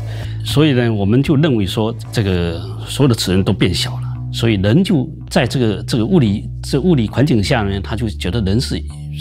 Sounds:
Speech, Music

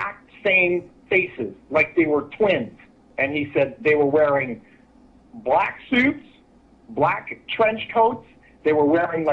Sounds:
Speech

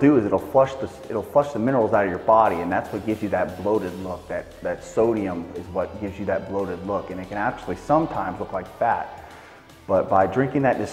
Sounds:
Speech, Music

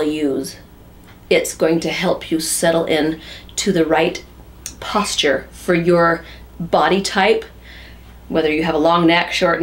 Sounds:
Speech

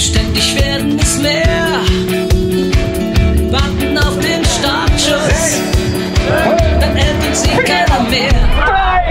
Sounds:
Speech, Music, outside, urban or man-made

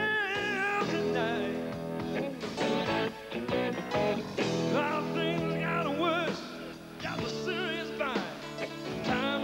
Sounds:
Music, Rock and roll

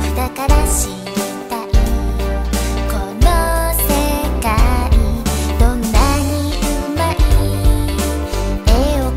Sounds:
Music for children, Music

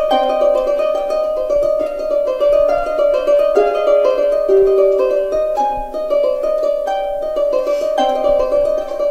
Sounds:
playing harp

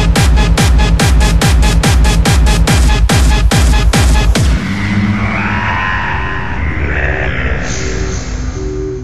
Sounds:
Music

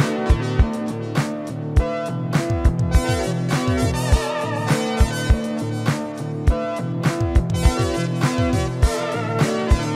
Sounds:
Keyboard (musical), Piano, Music, Organ, Musical instrument, Synthesizer

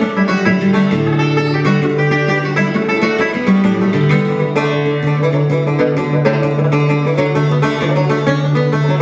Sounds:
Music

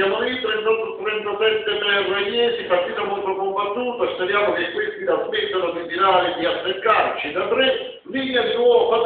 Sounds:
Speech

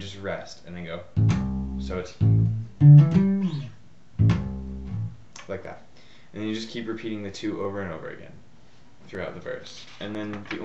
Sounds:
Musical instrument, Bass guitar, Speech, Plucked string instrument, Music, Guitar

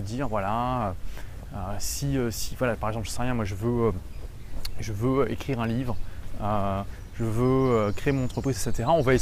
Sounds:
Speech

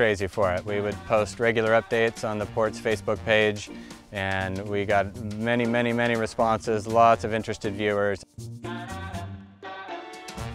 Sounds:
Speech, Music

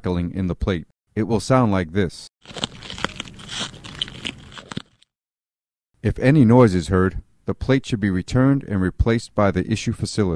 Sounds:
Speech

